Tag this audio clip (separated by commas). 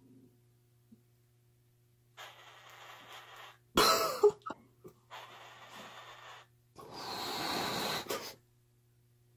bird squawking